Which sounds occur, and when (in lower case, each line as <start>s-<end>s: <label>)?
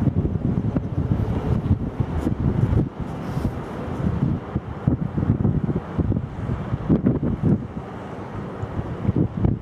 0.0s-2.8s: wind noise (microphone)
0.0s-9.6s: ocean
0.0s-9.6s: ship
0.0s-9.6s: wind
0.7s-0.8s: generic impact sounds
2.1s-2.3s: generic impact sounds
3.0s-3.5s: wind noise (microphone)
3.0s-3.4s: surface contact
4.0s-4.5s: wind noise (microphone)
4.7s-5.7s: wind noise (microphone)
5.9s-6.2s: wind noise (microphone)
6.3s-7.8s: wind noise (microphone)
8.5s-9.6s: wind noise (microphone)
8.5s-8.7s: generic impact sounds